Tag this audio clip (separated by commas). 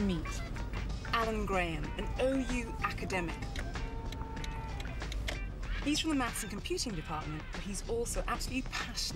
Speech, Exciting music, Music